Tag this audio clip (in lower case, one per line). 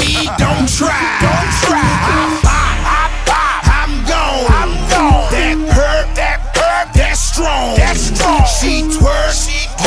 music